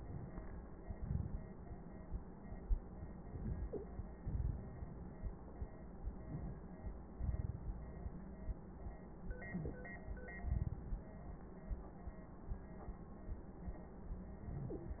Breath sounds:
3.19-3.87 s: inhalation
4.23-5.37 s: exhalation
6.03-6.72 s: inhalation
7.21-8.20 s: exhalation
9.39-10.04 s: inhalation

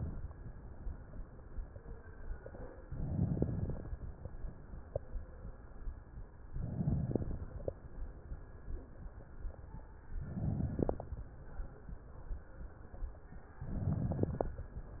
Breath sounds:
2.87-3.89 s: inhalation
2.87-3.89 s: crackles
6.53-7.55 s: inhalation
6.53-7.55 s: crackles
10.23-11.25 s: inhalation
10.23-11.25 s: crackles
13.66-14.69 s: inhalation
13.66-14.69 s: crackles

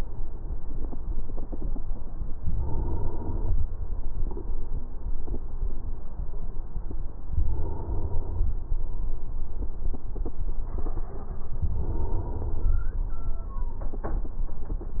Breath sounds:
2.36-3.64 s: inhalation
7.33-8.61 s: inhalation
11.62-12.79 s: inhalation

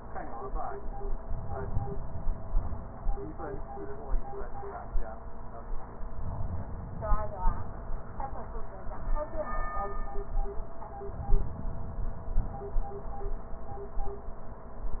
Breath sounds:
1.23-3.21 s: inhalation
5.98-8.31 s: inhalation
10.99-13.02 s: inhalation

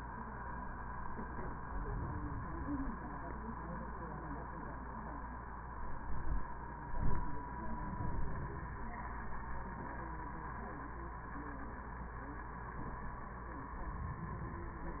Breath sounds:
1.55-3.00 s: inhalation
7.59-9.03 s: inhalation
13.65-15.00 s: inhalation

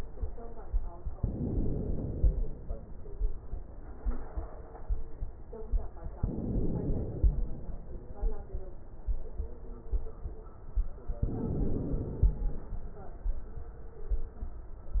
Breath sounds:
1.15-2.47 s: inhalation
6.18-7.50 s: inhalation
11.21-12.53 s: inhalation

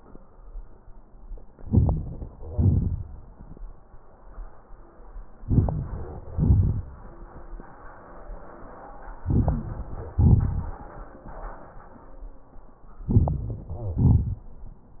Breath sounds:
1.56-2.42 s: inhalation
1.56-2.42 s: crackles
2.43-3.38 s: exhalation
2.43-3.38 s: crackles
5.36-6.25 s: inhalation
5.36-6.25 s: crackles
6.31-7.68 s: exhalation
6.31-7.68 s: crackles
9.21-10.13 s: inhalation
9.21-10.13 s: crackles
10.15-11.71 s: exhalation
10.15-11.71 s: crackles
13.00-13.65 s: inhalation
13.00-13.65 s: crackles
13.67-14.90 s: exhalation

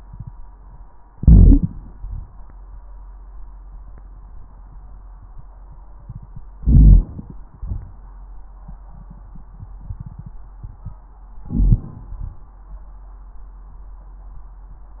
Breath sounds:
1.10-1.91 s: crackles
1.10-1.92 s: inhalation
1.10-1.92 s: wheeze
1.90-2.42 s: exhalation
1.94-2.44 s: crackles
6.58-7.41 s: inhalation
6.58-7.41 s: wheeze
6.58-7.41 s: crackles
7.57-8.07 s: exhalation
7.57-8.07 s: crackles
11.47-12.11 s: inhalation
11.47-12.11 s: crackles
12.12-12.57 s: exhalation
12.12-12.57 s: crackles

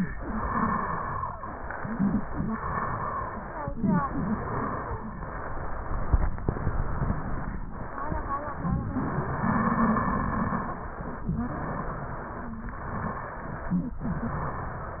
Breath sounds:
0.17-1.31 s: exhalation
0.17-1.31 s: wheeze
1.39-2.49 s: inhalation
1.39-2.49 s: wheeze
2.51-3.65 s: exhalation
2.51-3.65 s: wheeze
3.88-5.09 s: inhalation
3.88-5.09 s: wheeze
5.11-6.33 s: exhalation
6.40-7.62 s: inhalation
7.70-8.80 s: exhalation
7.71-8.81 s: wheeze
8.93-11.32 s: exhalation
8.93-11.32 s: wheeze
11.46-12.56 s: inhalation
11.46-12.56 s: wheeze
12.69-13.96 s: exhalation
12.69-13.96 s: wheeze
14.06-15.00 s: inhalation
14.06-15.00 s: wheeze

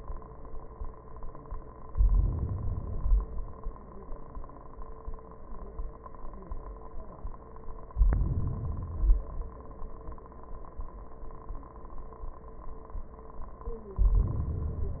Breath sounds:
1.83-2.80 s: inhalation
2.79-3.77 s: exhalation
7.88-8.90 s: inhalation
8.92-10.29 s: exhalation
13.91-15.00 s: inhalation

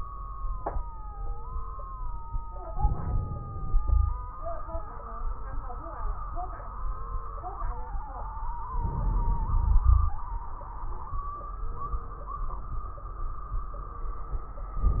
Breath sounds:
2.68-3.77 s: inhalation
2.68-3.77 s: crackles
3.78-4.35 s: exhalation
3.78-4.35 s: wheeze
8.68-10.18 s: inhalation
8.68-10.18 s: wheeze

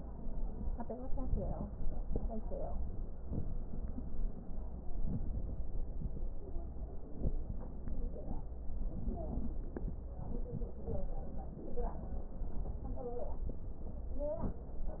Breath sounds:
0.97-1.75 s: inhalation
0.97-1.75 s: crackles
3.13-3.70 s: inhalation
4.79-5.86 s: crackles
4.81-5.86 s: inhalation
5.88-7.11 s: exhalation
5.88-7.11 s: crackles
7.11-7.76 s: inhalation
7.11-7.76 s: crackles
14.04-14.67 s: inhalation
14.04-14.67 s: crackles

